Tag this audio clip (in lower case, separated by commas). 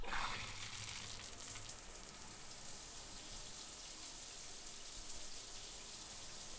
bathtub (filling or washing), domestic sounds, water